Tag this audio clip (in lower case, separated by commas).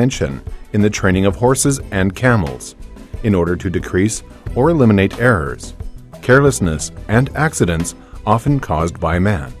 music, speech